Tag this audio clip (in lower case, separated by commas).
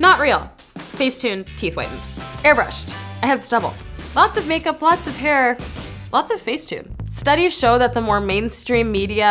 inside a small room, music, speech